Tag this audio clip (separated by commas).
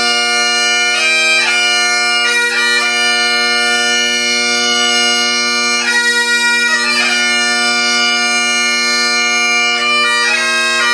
playing bagpipes